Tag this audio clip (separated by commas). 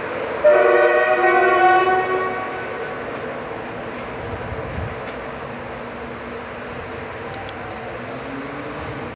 Accelerating, Engine, Vehicle